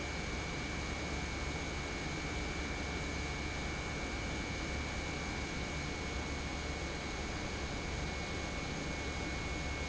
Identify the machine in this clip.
pump